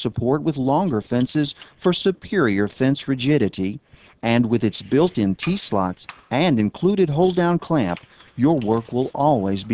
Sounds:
speech

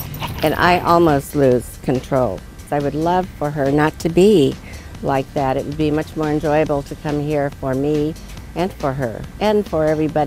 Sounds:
speech
music

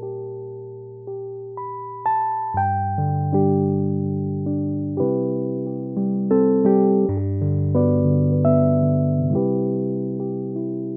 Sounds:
electric piano
keyboard (musical)
piano

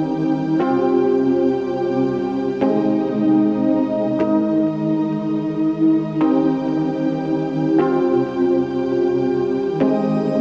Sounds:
music

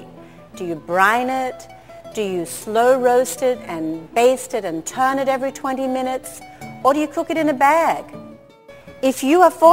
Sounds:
speech
music

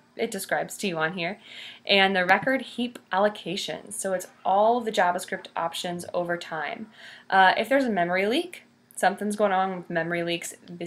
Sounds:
speech

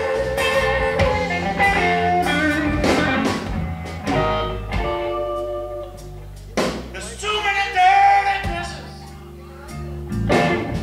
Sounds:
music

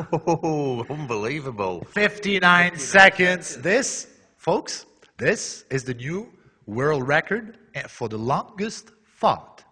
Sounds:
people farting

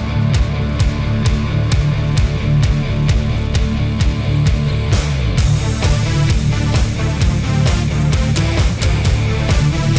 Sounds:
music

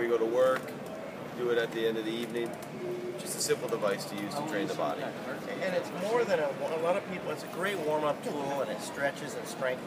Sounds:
speech

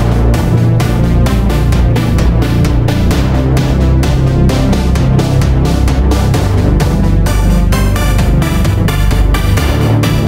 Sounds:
music
electronic music
techno

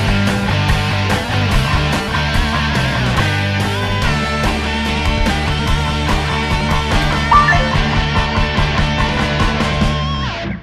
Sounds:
music

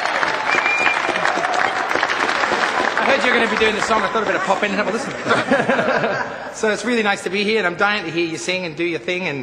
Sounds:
speech

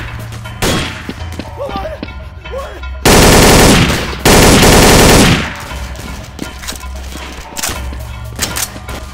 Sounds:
music
speech

